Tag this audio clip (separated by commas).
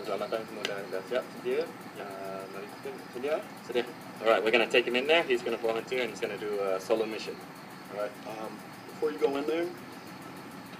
Speech